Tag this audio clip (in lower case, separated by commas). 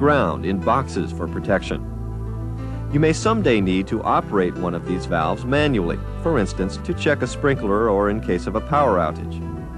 music, speech